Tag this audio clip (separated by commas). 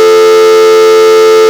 Alarm, Telephone